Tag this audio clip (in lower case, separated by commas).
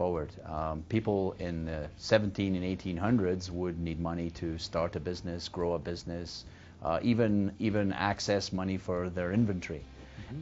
speech, television